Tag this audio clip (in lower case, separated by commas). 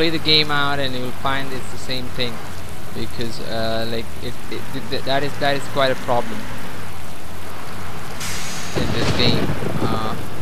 bus, vehicle, speech